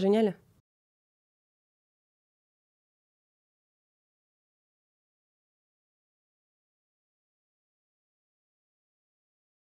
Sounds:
Speech

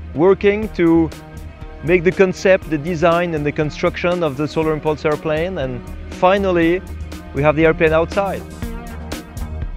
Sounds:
Speech, Music

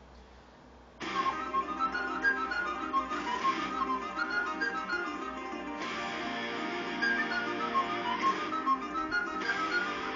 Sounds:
playing flute

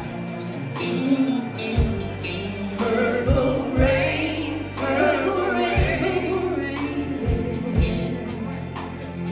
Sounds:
Singing, Gospel music, Music

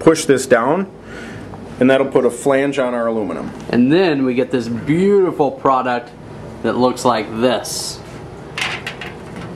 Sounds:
inside a large room or hall, Speech

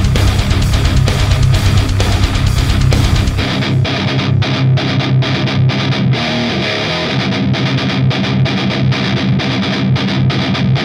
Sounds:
Distortion, Music

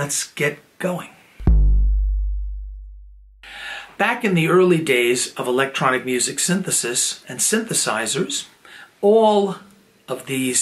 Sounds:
Music, Synthesizer, Speech

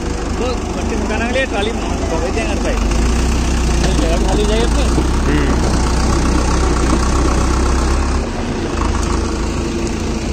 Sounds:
tractor digging

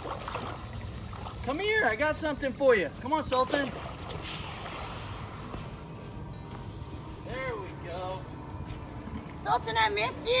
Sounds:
alligators

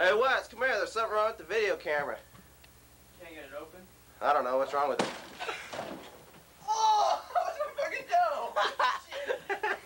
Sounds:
Speech

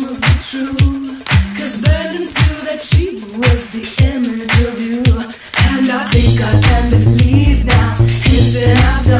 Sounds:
Rhythm and blues, Music

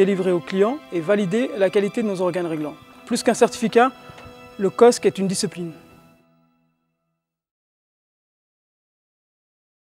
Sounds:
Music, Speech

